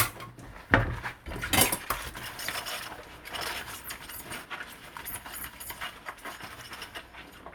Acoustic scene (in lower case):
kitchen